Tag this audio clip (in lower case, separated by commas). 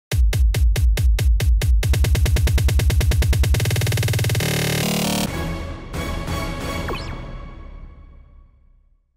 drum machine, music